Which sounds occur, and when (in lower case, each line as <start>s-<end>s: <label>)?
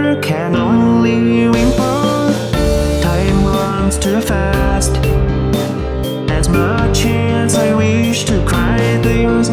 0.0s-9.5s: music
0.0s-2.4s: male singing
3.0s-5.1s: male singing
6.3s-9.5s: male singing